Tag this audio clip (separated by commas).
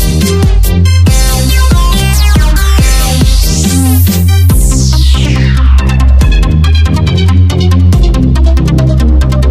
Music, Dubstep